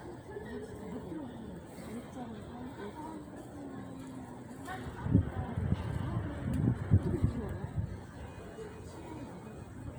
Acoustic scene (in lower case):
residential area